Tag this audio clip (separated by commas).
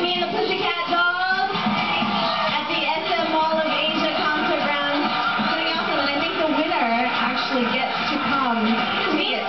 Music, Speech